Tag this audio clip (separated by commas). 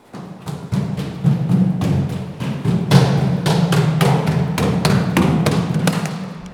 Run